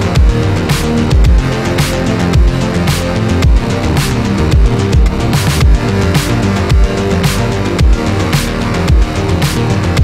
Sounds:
music

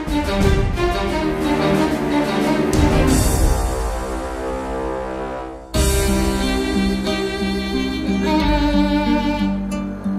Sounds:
fiddle, musical instrument, music

